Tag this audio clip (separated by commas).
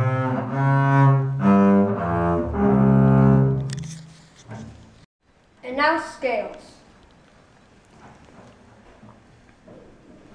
playing double bass